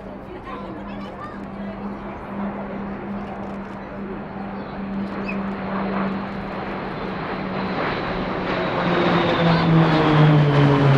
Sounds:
airplane flyby

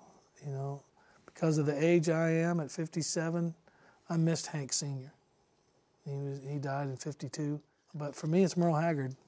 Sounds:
Speech

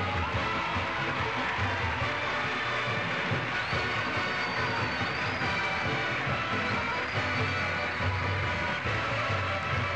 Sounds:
Percussion, Drum, Drum roll

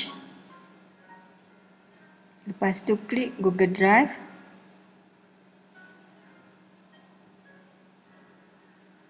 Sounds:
Music, Speech

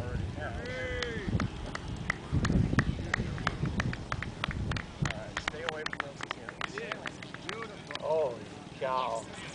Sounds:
Speech

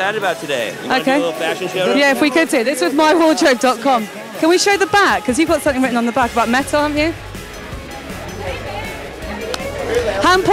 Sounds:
Music, Speech

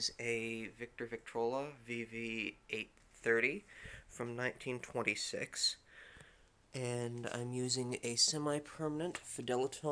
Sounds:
Speech

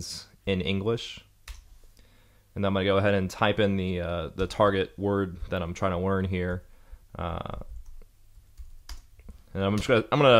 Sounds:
Speech, Clicking

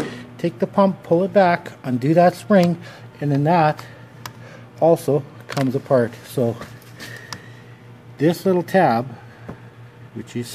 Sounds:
Speech, inside a large room or hall

